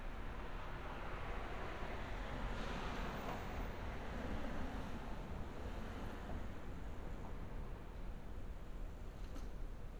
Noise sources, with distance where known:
background noise

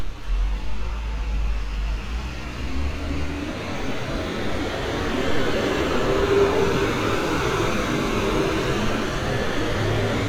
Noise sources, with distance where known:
large-sounding engine

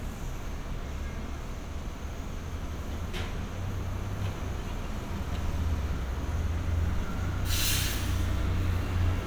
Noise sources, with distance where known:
engine of unclear size

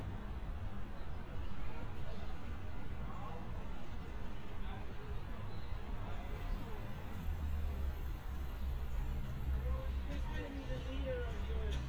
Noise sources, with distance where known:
person or small group talking, far

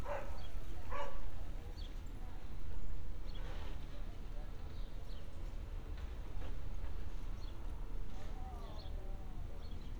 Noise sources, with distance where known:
dog barking or whining

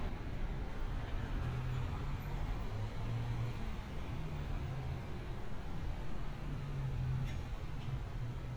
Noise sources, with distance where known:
engine of unclear size

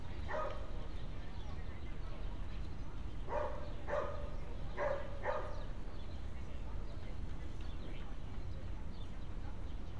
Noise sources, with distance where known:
dog barking or whining, near

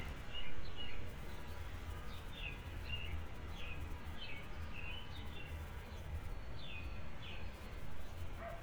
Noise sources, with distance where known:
dog barking or whining, far

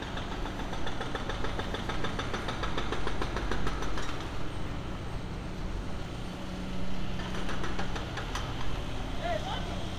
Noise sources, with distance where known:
jackhammer
person or small group shouting, near

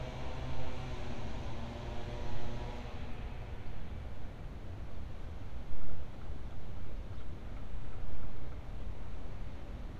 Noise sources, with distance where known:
background noise

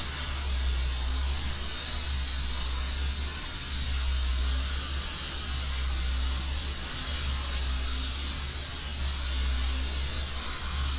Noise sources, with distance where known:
unidentified powered saw

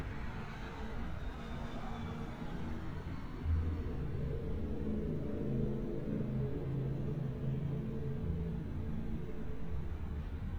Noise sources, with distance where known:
engine of unclear size, far

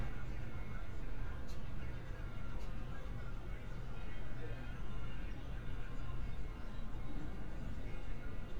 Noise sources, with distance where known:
person or small group talking, far

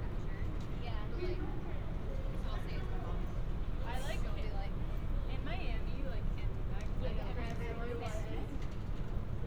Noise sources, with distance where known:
person or small group talking, near

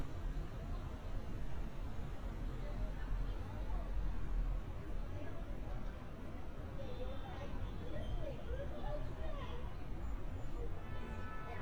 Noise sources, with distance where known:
large-sounding engine
car horn
person or small group talking

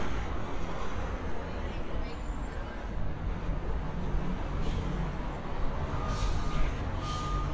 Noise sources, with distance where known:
large-sounding engine, near

